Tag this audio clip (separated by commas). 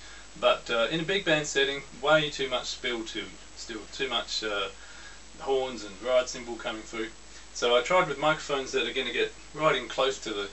Speech